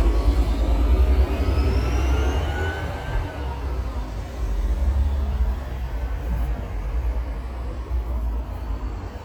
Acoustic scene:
street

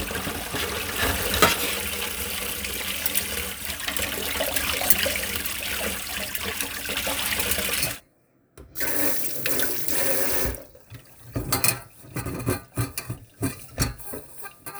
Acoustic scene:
kitchen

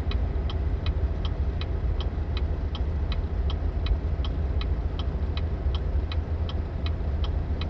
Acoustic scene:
car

